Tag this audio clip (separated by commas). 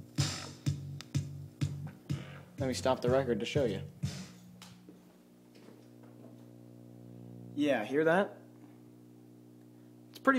Speech, Music